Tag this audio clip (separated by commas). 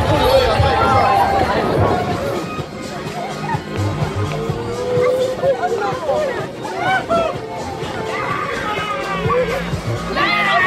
Speech, Music, Run